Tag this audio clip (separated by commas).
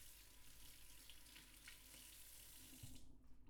Liquid